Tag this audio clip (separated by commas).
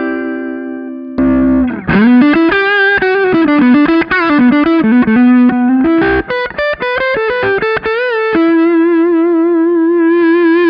Guitar, Music, Effects unit, Plucked string instrument, Distortion, Musical instrument